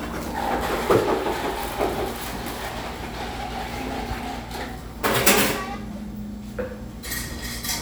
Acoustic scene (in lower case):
cafe